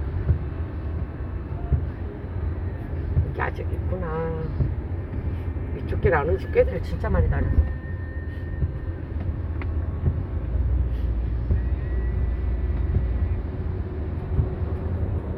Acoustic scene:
car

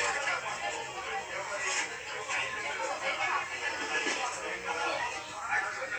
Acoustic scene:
restaurant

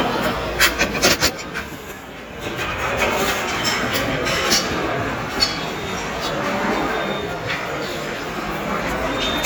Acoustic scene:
restaurant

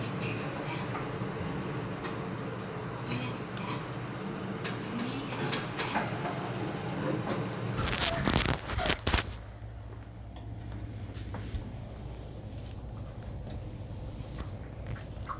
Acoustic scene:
elevator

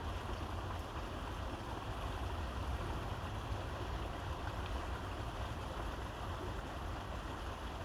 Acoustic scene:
park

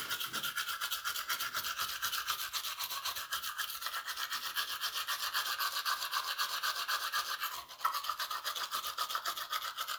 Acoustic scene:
restroom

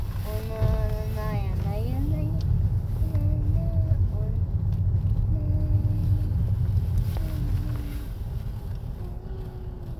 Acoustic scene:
car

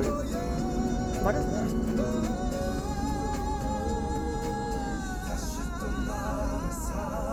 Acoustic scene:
car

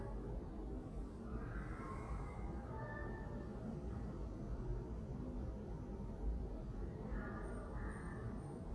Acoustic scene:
elevator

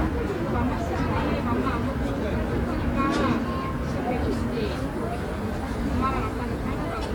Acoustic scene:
residential area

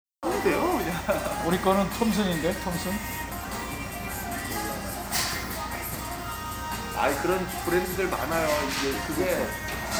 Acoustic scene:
restaurant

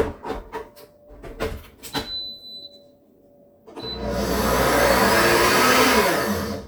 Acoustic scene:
kitchen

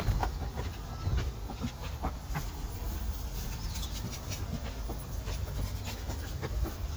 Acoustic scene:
residential area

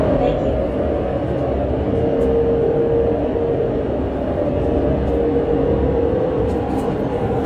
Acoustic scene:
subway train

